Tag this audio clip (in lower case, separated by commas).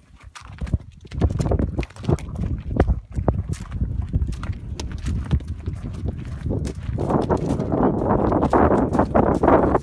clip-clop, horse clip-clop, animal